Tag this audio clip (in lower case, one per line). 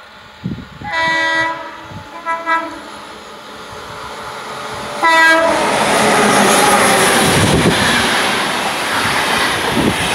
train horning